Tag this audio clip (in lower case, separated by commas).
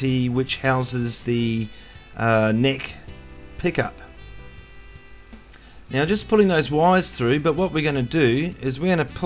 musical instrument, strum, guitar, plucked string instrument, music, speech